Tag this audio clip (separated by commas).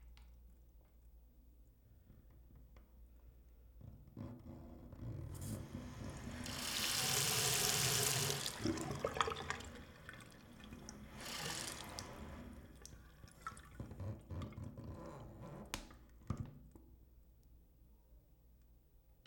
Domestic sounds, Sink (filling or washing), faucet